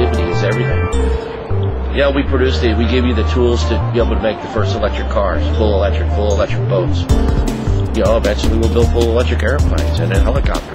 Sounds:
music
speech

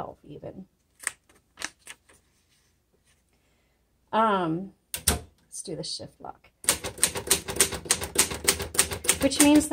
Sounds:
typing on typewriter

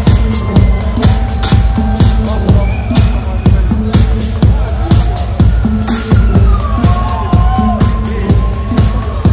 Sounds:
electronic music
music

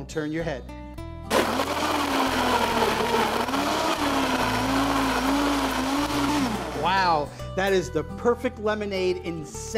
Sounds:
blender
music
speech

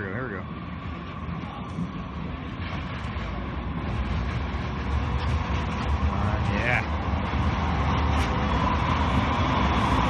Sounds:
speech

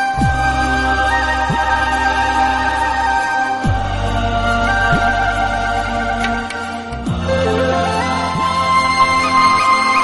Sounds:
background music
music
flute

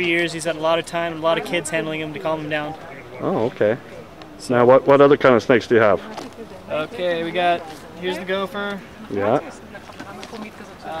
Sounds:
speech

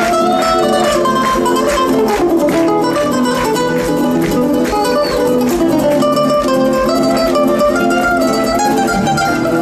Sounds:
plucked string instrument
flamenco
guitar

